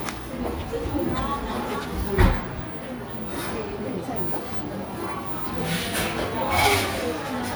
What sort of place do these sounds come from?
cafe